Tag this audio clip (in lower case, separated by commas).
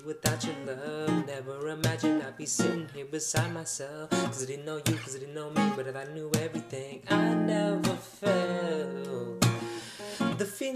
music, plucked string instrument, musical instrument, acoustic guitar, guitar, strum